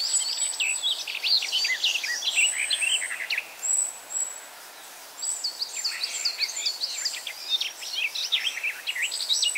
A bird chirping with its group